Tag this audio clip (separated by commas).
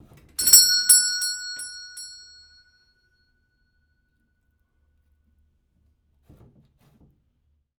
Door, Alarm, Doorbell, Domestic sounds